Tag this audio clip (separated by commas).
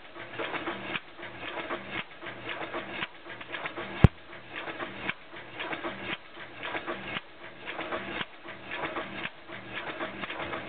Idling, Engine, Heavy engine (low frequency)